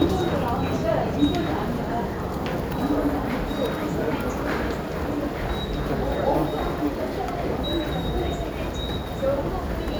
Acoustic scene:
subway station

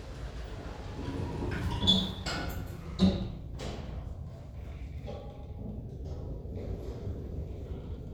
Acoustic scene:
elevator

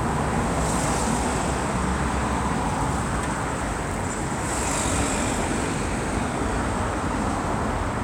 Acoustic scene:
street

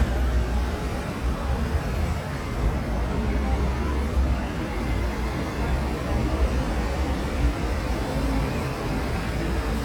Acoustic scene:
street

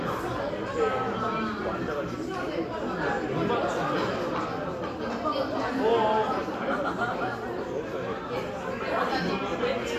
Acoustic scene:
crowded indoor space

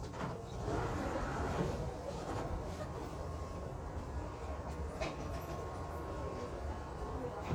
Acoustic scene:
subway train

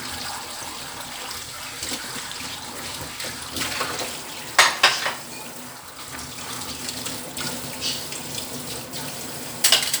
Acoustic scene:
kitchen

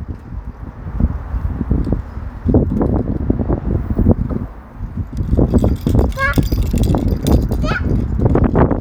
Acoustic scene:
residential area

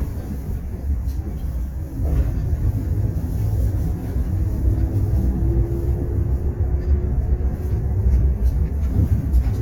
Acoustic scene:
bus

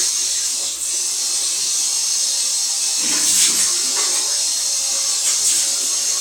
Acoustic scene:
restroom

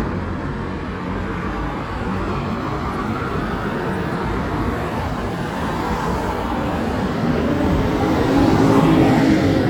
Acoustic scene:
street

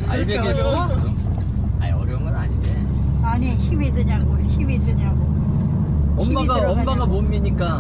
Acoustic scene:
car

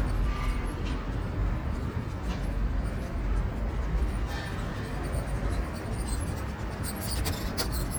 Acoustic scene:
street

